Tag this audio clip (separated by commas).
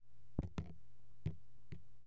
Raindrop, Liquid, Water, Drip, Rain